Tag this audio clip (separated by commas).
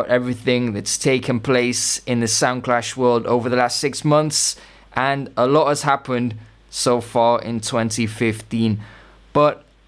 Speech